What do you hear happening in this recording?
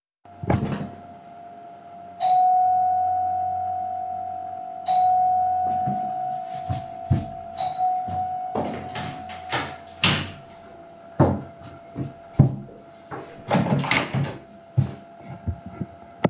My office Chair moves. The bell rings and I get up to walk to the Door. Then I open the Door.